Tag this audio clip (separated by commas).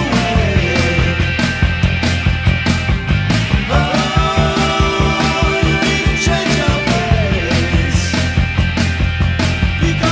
Music